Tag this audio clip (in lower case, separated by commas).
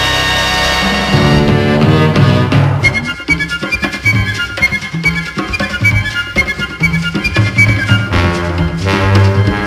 theme music, soundtrack music, music